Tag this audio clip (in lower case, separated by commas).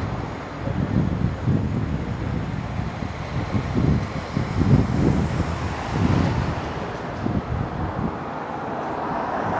vehicle, car